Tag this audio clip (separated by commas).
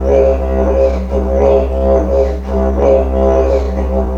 Musical instrument, Music